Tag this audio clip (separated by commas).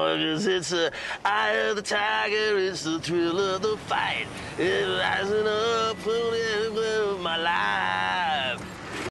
Speech